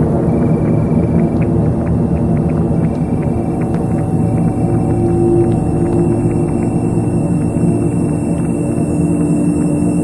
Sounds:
Music, Electronic music

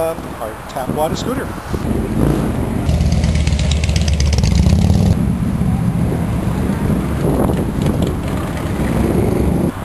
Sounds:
Vehicle, Motorcycle, Speech

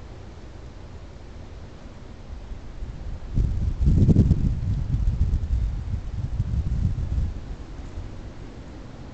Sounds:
Chink

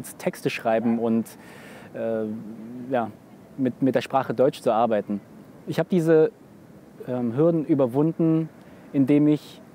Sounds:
Speech

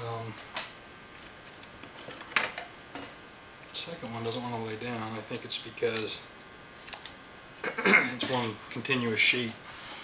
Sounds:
inside a large room or hall, Speech

